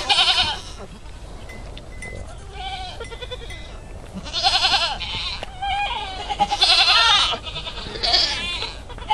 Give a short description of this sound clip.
A large group of farm animals bleating